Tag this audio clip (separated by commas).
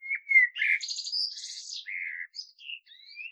Bird, Wild animals, Animal